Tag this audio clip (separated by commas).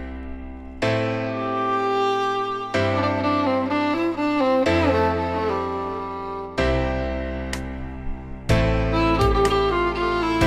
Musical instrument, fiddle, Music